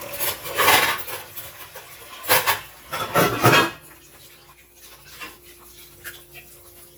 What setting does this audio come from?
kitchen